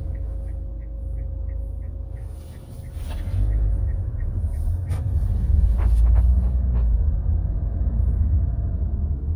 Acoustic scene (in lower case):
car